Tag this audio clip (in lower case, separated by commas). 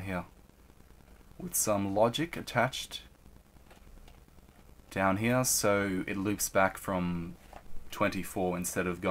speech